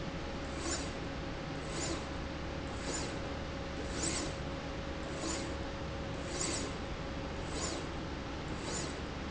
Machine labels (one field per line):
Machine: slide rail